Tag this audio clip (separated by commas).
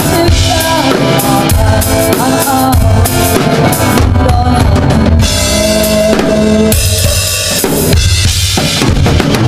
Music